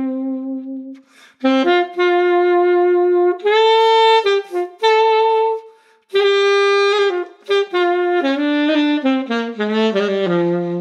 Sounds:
playing saxophone

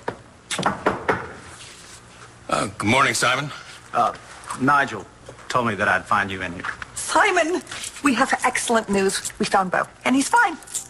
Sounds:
inside a small room
speech

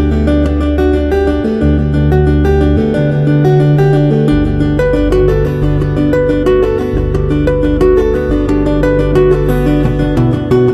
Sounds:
music

